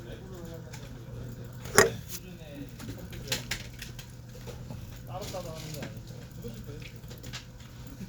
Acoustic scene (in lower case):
crowded indoor space